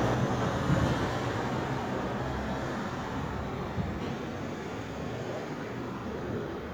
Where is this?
on a street